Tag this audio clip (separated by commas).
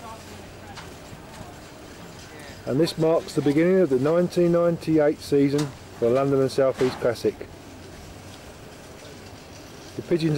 Speech